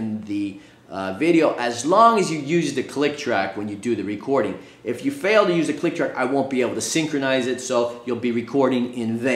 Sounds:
speech

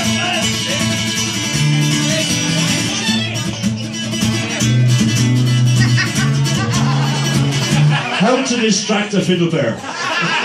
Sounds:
music
musical instrument
violin
speech

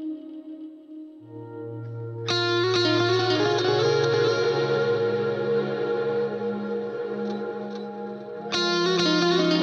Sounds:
music
electric guitar
plucked string instrument
musical instrument
guitar

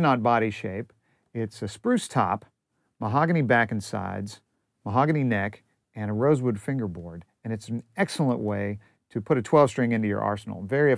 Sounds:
speech

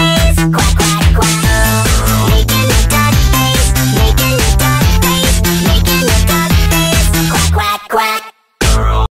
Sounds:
quack
music

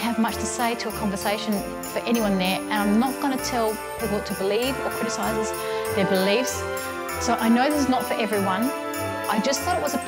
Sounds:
speech
music
soundtrack music

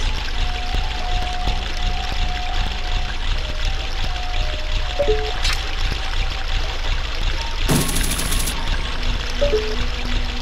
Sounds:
music

